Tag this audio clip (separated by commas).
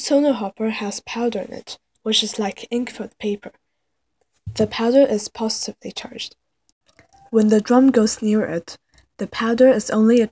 Speech